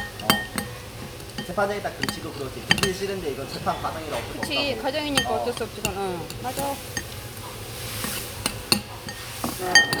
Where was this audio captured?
in a restaurant